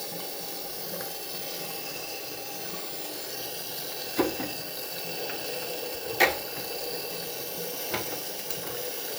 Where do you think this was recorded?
in a restroom